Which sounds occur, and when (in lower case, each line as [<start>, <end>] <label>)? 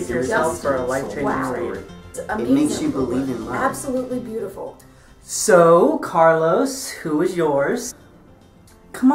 [0.00, 1.68] man speaking
[0.00, 9.14] conversation
[0.00, 9.14] music
[0.25, 1.71] female speech
[2.15, 3.72] man speaking
[2.25, 4.67] female speech
[4.75, 4.80] tick
[4.84, 5.11] breathing
[5.24, 7.97] man speaking
[8.33, 8.41] tick
[8.65, 8.76] tick